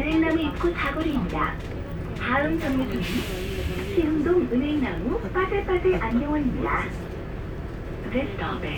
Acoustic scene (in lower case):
bus